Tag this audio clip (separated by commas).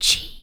Human voice, Whispering